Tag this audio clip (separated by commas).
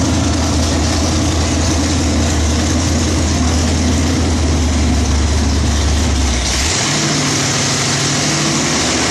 Vehicle